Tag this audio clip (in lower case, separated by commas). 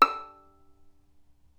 bowed string instrument, music, musical instrument